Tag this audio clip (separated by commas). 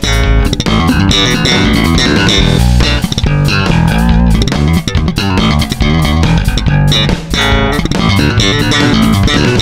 Electric guitar, Plucked string instrument, Music, Musical instrument, Guitar